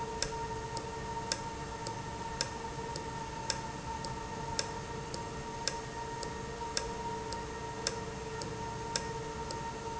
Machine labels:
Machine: valve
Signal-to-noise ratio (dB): -6 dB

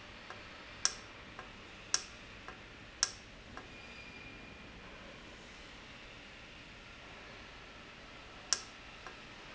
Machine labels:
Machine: valve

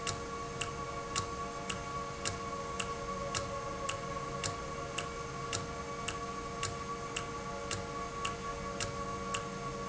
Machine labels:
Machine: valve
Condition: normal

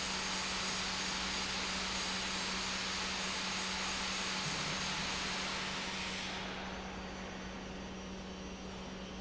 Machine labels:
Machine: pump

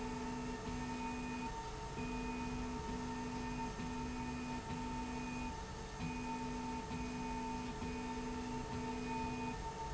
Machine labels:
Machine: slide rail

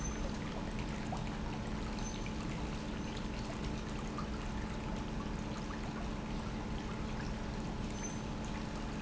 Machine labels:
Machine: pump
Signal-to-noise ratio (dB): -6 dB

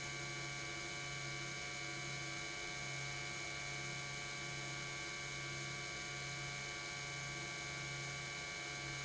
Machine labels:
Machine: pump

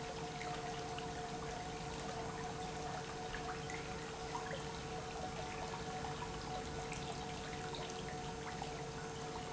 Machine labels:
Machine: pump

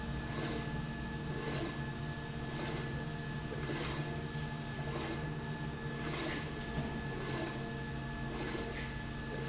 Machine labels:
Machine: slide rail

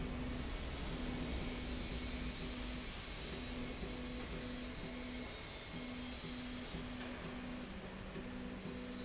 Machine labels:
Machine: slide rail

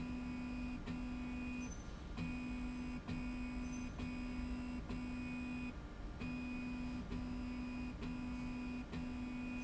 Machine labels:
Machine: slide rail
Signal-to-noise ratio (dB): 6 dB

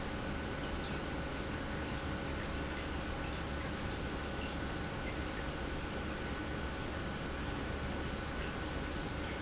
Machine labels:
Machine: pump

